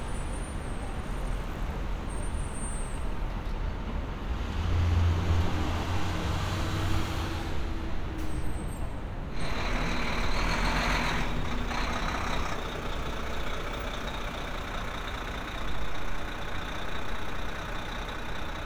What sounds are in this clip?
large-sounding engine